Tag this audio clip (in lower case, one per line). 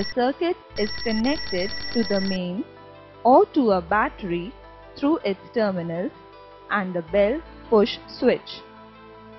speech
music